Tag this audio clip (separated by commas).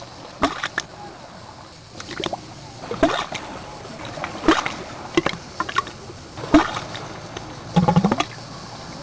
Ocean, Water